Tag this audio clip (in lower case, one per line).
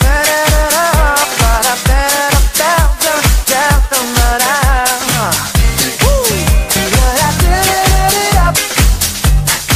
music
disco
funk